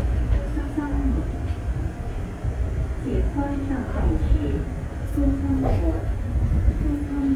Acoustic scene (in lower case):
subway train